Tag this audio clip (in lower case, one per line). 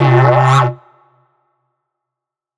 musical instrument
music